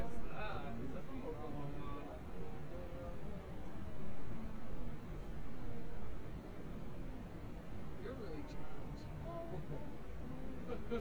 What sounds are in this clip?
person or small group talking